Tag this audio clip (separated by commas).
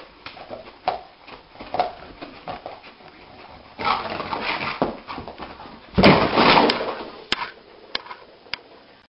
Animal, pets, Dog